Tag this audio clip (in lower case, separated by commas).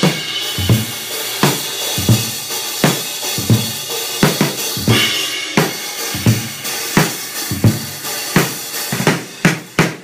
music